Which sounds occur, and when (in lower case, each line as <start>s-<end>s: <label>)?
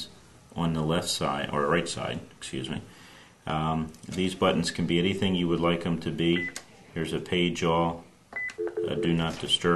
0.0s-9.7s: background noise
0.5s-2.2s: male speech
2.4s-2.8s: male speech
2.8s-3.3s: breathing
3.4s-3.9s: male speech
4.1s-6.5s: male speech
6.3s-6.5s: beep
6.5s-6.6s: keypress tone
6.6s-6.8s: speech
6.9s-8.0s: male speech
8.3s-8.5s: keypress tone
8.3s-8.4s: beep
8.6s-9.0s: beep
8.8s-9.7s: male speech